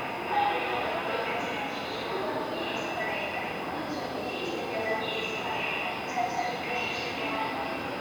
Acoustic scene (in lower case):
subway station